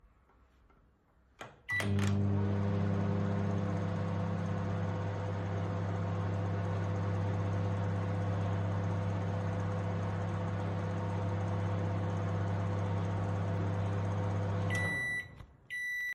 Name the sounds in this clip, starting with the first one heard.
footsteps, cutlery and dishes, microwave